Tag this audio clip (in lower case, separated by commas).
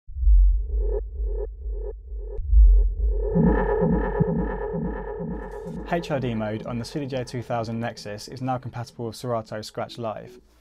music, speech